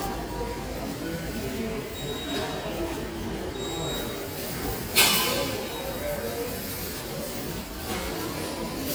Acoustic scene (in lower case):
crowded indoor space